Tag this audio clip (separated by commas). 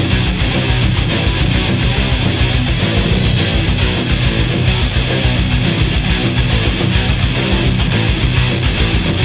Music, Soundtrack music